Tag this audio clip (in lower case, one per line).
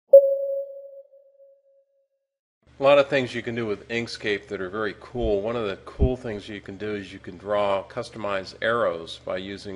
speech
inside a small room